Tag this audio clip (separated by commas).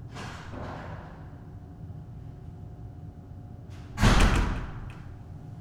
Slam, Door, Domestic sounds